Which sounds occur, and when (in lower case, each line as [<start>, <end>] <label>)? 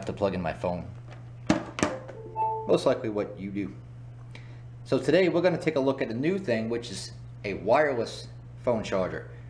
[0.00, 0.81] male speech
[0.00, 9.45] mechanisms
[1.04, 1.22] generic impact sounds
[1.45, 1.60] generic impact sounds
[1.74, 1.94] generic impact sounds
[2.13, 2.63] ringtone
[2.65, 3.76] male speech
[4.13, 4.79] breathing
[4.79, 7.12] male speech
[7.41, 8.30] male speech
[8.62, 9.26] male speech